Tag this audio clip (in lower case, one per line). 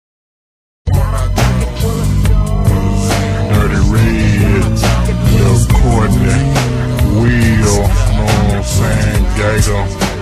music